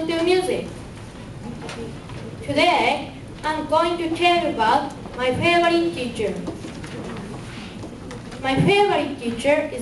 A child is giving a speech nervously